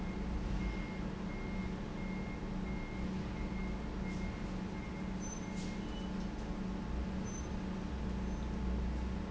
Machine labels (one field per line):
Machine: pump